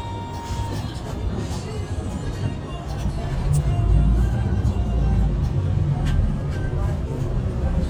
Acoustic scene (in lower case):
bus